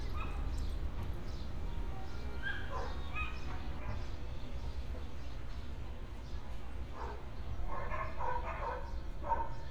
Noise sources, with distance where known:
car horn, far
dog barking or whining, near

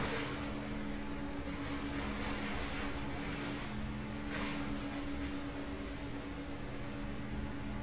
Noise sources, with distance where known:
engine of unclear size, near

